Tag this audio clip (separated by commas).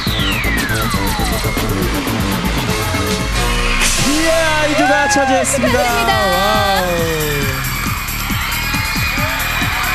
Music, Speech